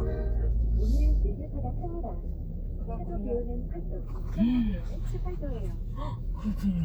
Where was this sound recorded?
in a car